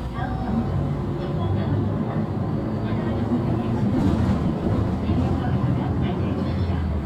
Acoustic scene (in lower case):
bus